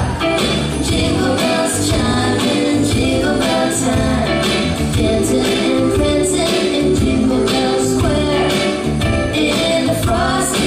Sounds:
Music

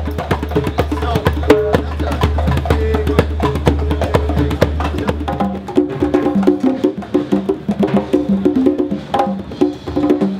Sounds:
Music, Wood block, Speech, Percussion

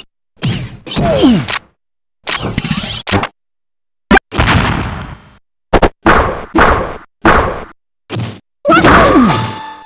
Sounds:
Sound effect

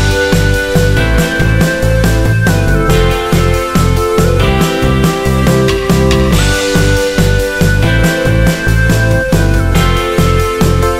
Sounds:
Music

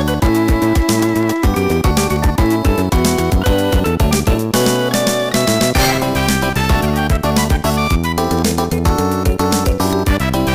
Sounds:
Music

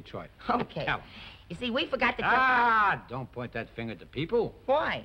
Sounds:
Speech

